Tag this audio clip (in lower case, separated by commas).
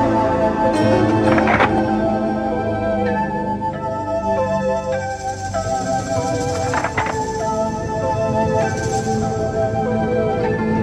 music